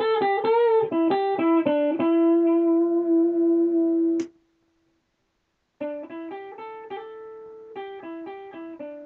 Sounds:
music, guitar

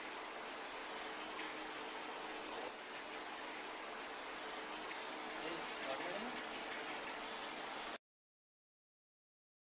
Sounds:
vehicle, speech, truck

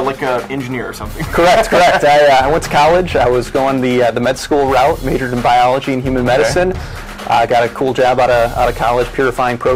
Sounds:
speech, music

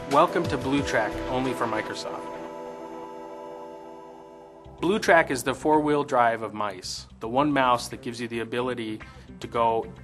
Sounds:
speech, music

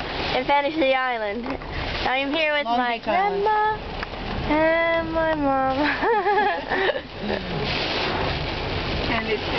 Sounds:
speech, rain on surface

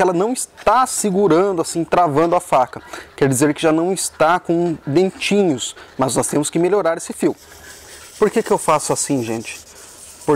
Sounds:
sharpen knife

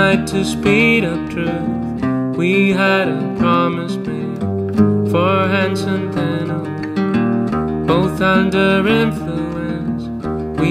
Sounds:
soundtrack music, music

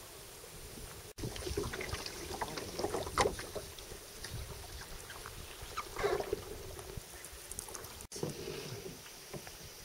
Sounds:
water vehicle, vehicle, canoe

